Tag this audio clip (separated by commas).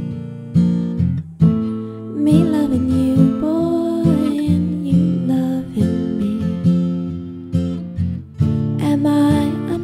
Music